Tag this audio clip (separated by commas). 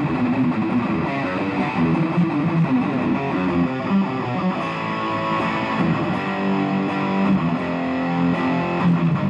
Music